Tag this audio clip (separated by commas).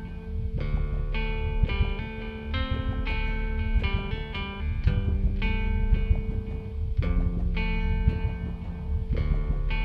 Music